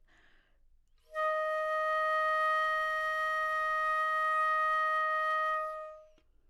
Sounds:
Wind instrument, Musical instrument, Music

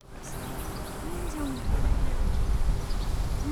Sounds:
Wild animals, Bird, Animal

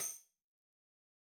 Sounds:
Percussion, Tambourine, Musical instrument, Music

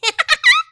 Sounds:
Human voice, Laughter

